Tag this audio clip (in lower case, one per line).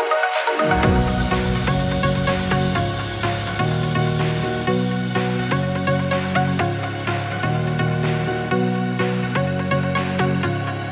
music